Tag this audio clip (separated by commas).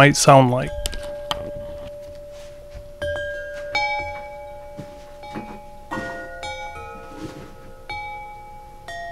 Wind chime, Speech